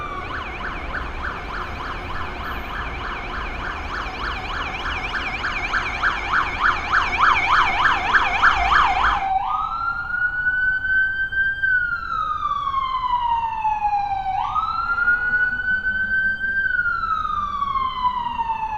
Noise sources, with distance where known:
siren, near

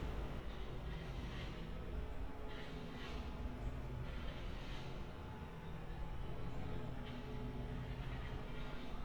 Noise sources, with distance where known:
non-machinery impact, far

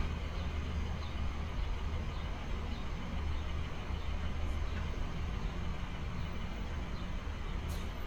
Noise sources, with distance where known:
large-sounding engine, far

